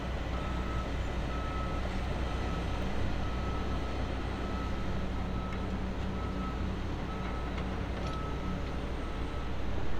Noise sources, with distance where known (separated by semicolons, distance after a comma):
reverse beeper, far